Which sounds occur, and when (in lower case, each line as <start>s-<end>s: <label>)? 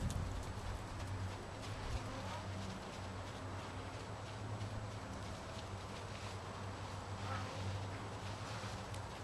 0.0s-9.2s: clip-clop
0.0s-9.2s: mechanisms
0.0s-9.2s: wind
1.9s-2.3s: snort (horse)
7.1s-7.8s: snort (horse)
8.2s-8.8s: snort (horse)